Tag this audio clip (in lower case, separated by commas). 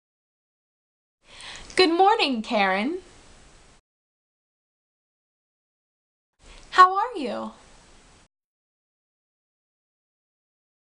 speech